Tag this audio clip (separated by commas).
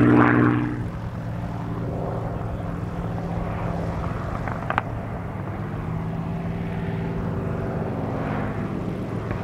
Speech, Fixed-wing aircraft, Aircraft, Vehicle